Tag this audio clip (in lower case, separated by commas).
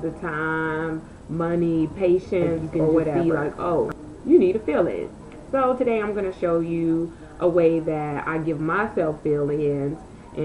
speech